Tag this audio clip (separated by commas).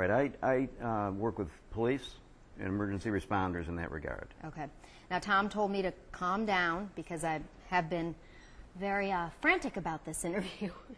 inside a small room, Speech